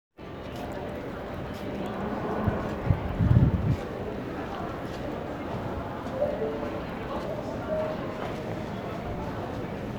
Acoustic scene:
crowded indoor space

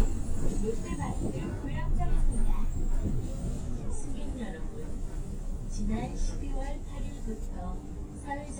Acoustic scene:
bus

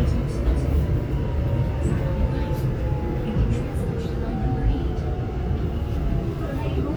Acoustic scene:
subway train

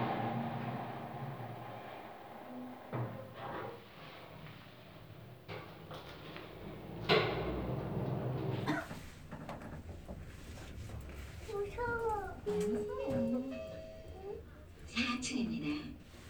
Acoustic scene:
elevator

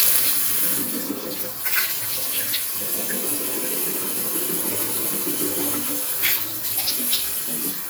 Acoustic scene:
restroom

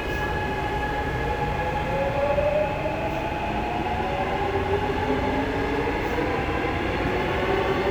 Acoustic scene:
subway train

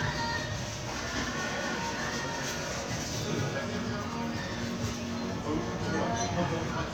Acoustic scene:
crowded indoor space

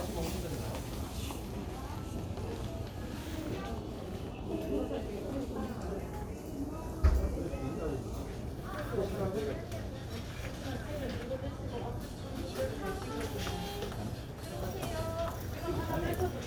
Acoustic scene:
crowded indoor space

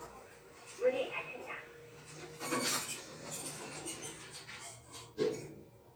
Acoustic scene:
elevator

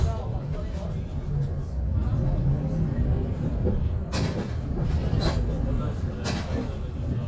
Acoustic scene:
bus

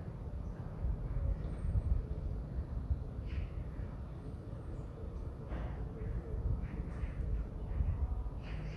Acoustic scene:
residential area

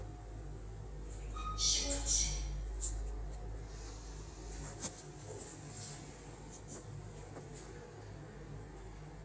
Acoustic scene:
elevator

